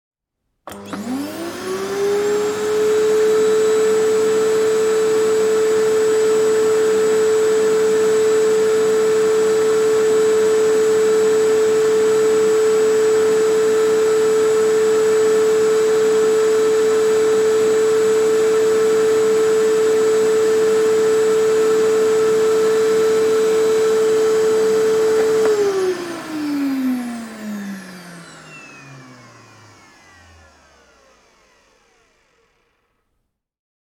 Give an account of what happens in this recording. I picked up my keys from the side and held them in one hand as I switched on the vacuum cleaner with the other. I walked back and forth across the bedroom floor, my keychain jingling as I moved. Once the floor was clean, I turned off the vacuum and set my keys down.